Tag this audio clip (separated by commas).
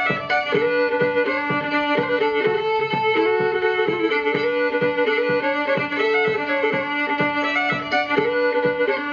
Musical instrument, Violin, Music